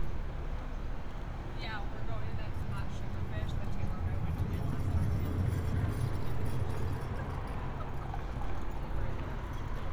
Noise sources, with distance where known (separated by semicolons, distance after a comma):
person or small group talking, near